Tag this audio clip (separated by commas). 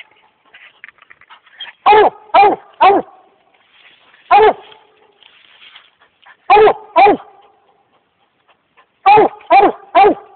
Dog, Animal